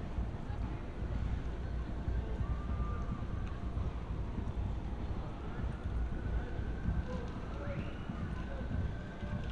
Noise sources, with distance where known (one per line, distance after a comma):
siren, far
person or small group talking, far